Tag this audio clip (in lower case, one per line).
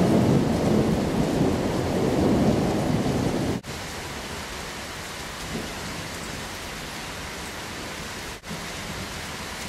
raindrop
thunderstorm
rain
thunder